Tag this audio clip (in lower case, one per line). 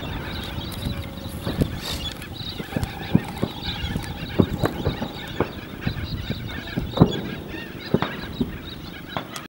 animal